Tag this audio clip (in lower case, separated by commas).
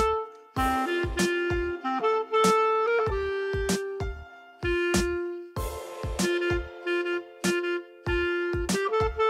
playing clarinet